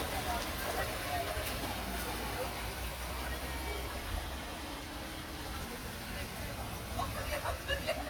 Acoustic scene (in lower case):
park